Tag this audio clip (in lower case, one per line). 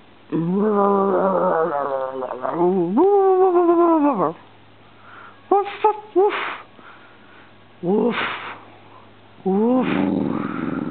domestic animals
dog
animal